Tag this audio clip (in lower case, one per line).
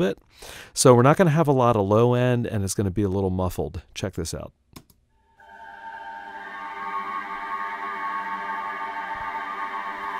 music
speech